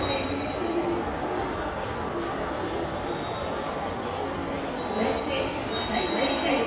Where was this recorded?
in a subway station